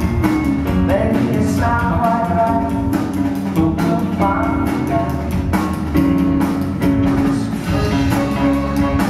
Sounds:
String section, Music

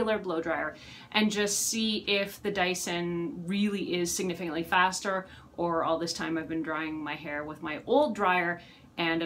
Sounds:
hair dryer drying

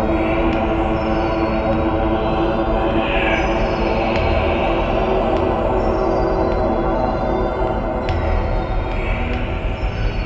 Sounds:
Music

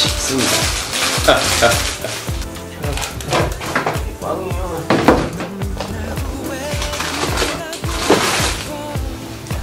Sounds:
Speech, Music, inside a small room

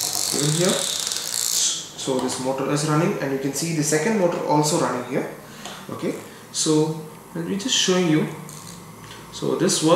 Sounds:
inside a small room, Speech

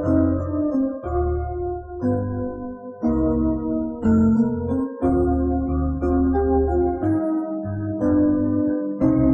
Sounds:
Music

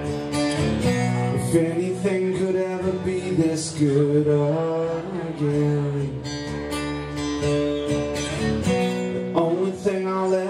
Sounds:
Singing, Music

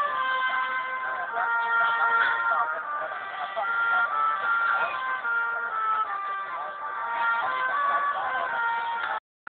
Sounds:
Trumpet, Musical instrument, Speech, Music

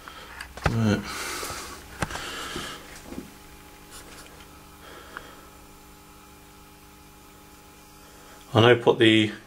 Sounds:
Speech

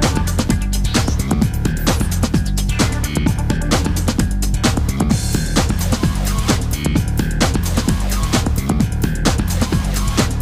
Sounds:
Electronic music, Music, Techno

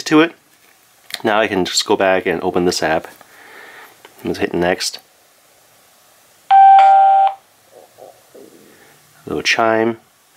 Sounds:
Speech

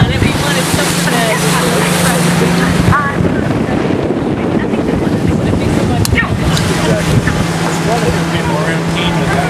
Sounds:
Speech, Motorboat, Boat, Vehicle

